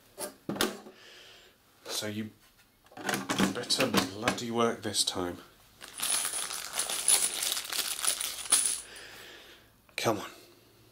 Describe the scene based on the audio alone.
A person speaks, some rattling and banging